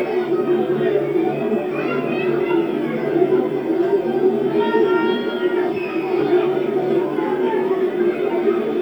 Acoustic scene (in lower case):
park